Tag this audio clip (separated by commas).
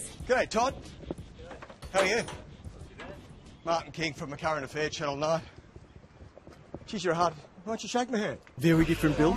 Music, Speech